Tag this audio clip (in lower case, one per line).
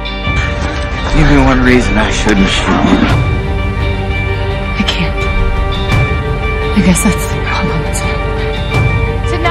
music
speech